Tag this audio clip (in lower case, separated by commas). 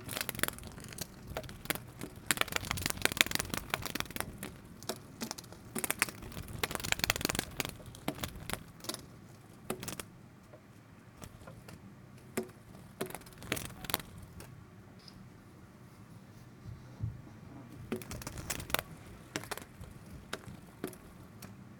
animal, wild animals, insect